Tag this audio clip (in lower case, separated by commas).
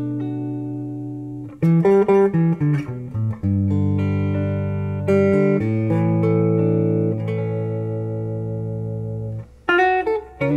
plucked string instrument, electric guitar, guitar, musical instrument, music, inside a small room